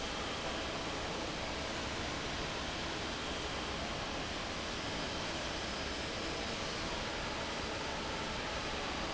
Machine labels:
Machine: fan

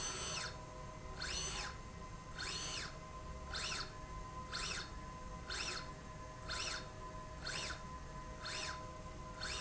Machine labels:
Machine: slide rail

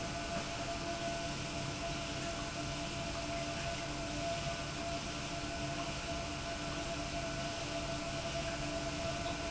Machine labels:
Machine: pump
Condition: normal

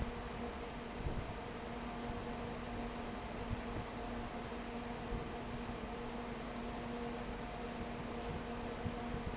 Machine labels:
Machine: fan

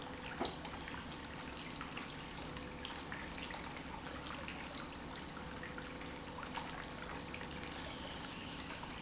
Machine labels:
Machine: pump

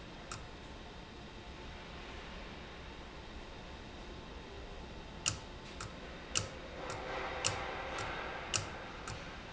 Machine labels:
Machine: valve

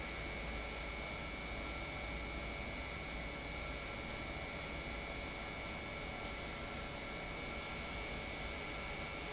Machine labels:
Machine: pump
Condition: normal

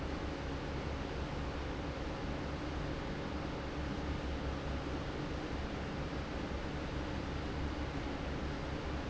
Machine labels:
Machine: fan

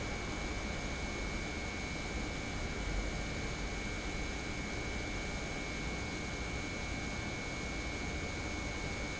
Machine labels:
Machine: pump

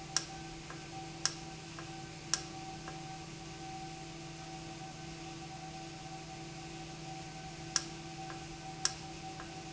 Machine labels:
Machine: valve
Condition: normal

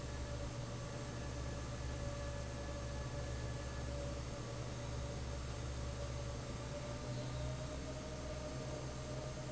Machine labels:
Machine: fan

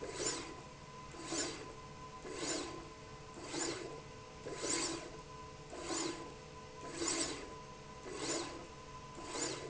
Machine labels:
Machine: slide rail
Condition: abnormal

